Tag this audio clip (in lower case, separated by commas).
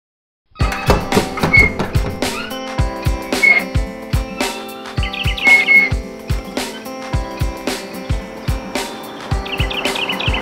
outside, rural or natural, music